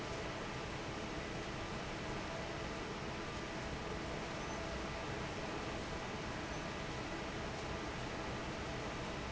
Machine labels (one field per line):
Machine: fan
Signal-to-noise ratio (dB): 0 dB